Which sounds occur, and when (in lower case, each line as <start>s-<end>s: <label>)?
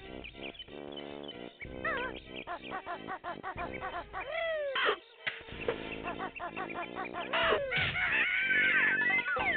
0.0s-9.5s: music
0.0s-9.5s: video game sound
0.2s-1.3s: bird
1.6s-2.7s: bird
1.8s-2.2s: speech synthesizer
2.3s-4.7s: speech synthesizer
4.7s-5.0s: crow
5.2s-5.4s: generic impact sounds
5.6s-7.3s: bird
5.7s-5.8s: generic impact sounds
5.9s-7.2s: speech synthesizer
7.3s-8.9s: crowing
8.9s-9.5s: sound effect